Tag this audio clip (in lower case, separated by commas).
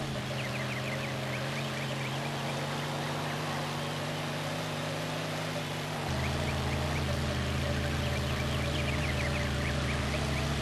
vehicle